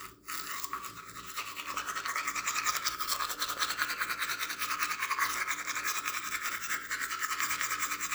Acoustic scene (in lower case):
restroom